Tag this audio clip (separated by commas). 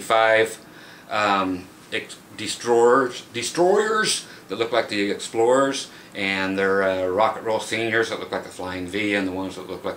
Speech